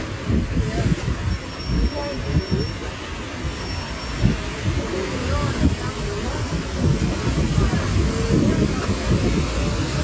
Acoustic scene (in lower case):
street